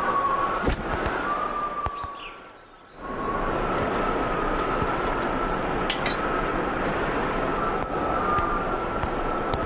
Wind blows strongly while some birds tweet and steps are taken